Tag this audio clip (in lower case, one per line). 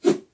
swoosh